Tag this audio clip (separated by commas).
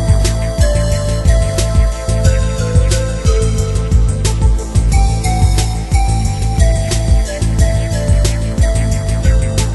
Music